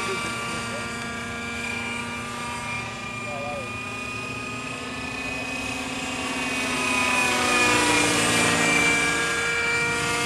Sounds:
speech
engine
vehicle

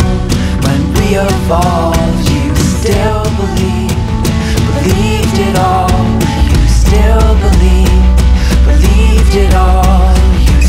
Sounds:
independent music
music

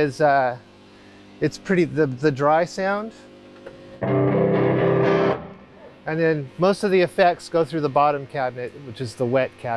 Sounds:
music
speech

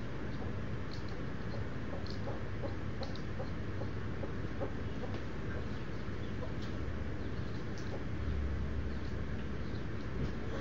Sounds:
animal

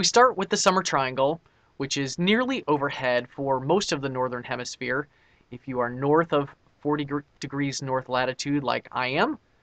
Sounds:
speech

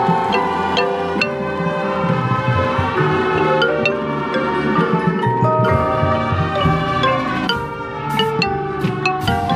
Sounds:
xylophone

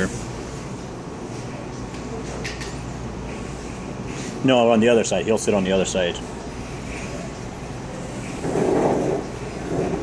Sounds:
speech

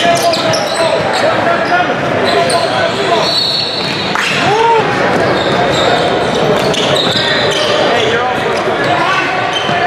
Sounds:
basketball bounce

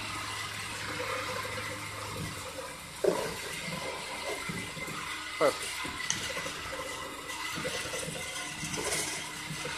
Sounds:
speech
spray

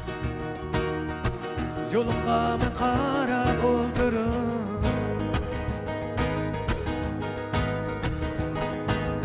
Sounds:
electric guitar
plucked string instrument
guitar
music
musical instrument
strum

